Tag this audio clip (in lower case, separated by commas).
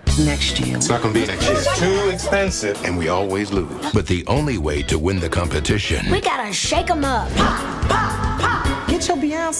speech, music